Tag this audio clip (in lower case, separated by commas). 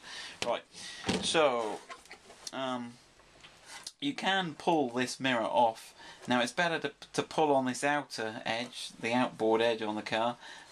speech